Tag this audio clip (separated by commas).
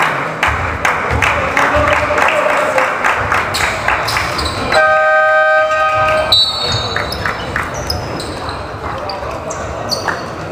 Speech